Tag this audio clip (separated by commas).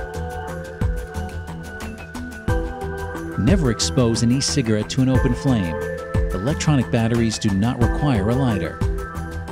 Speech, Music